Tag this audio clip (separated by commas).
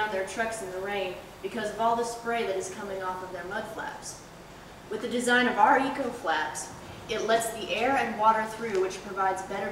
Speech